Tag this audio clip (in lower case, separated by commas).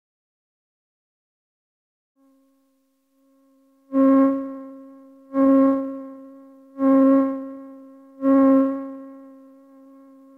sampler